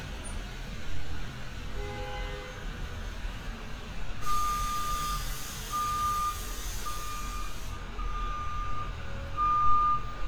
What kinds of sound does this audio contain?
engine of unclear size, car horn, reverse beeper